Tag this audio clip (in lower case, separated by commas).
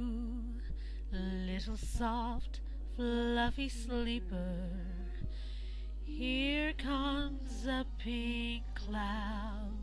lullaby